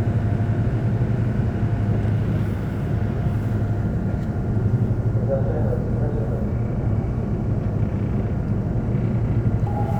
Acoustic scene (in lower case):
subway train